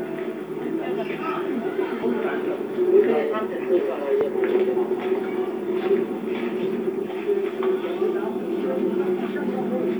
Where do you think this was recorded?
in a park